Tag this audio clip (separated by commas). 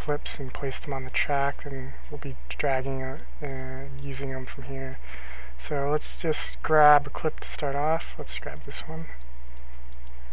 Speech